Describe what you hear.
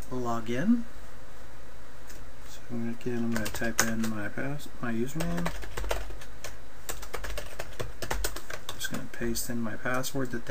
A man speaks followed by clicking on a keyboard